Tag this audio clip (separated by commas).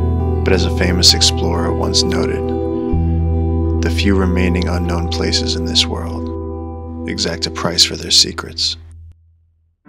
Music, Speech